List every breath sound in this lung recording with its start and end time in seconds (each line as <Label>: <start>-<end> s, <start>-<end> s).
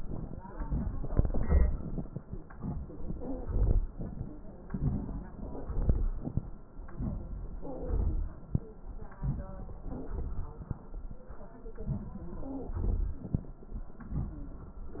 Wheeze: 3.43-3.90 s, 7.86-8.32 s, 12.68-13.23 s